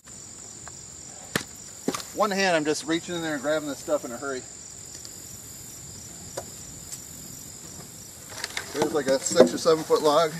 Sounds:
outside, rural or natural, Speech

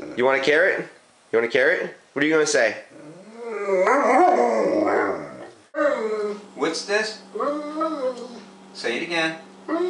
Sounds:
Speech, Yip

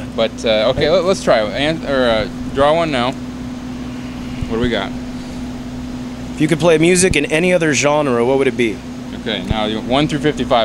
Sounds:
Speech, outside, urban or man-made

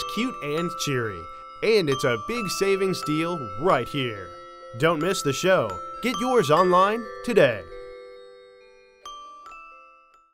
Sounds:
Mallet percussion, xylophone, Glockenspiel

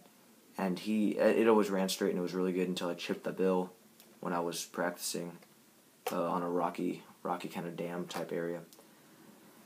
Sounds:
Speech, inside a small room

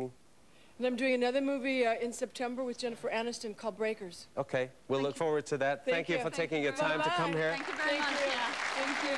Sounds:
Speech

